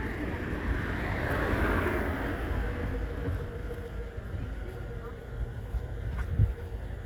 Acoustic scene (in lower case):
residential area